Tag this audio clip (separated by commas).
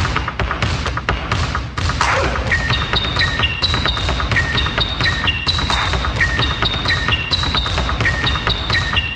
basketball bounce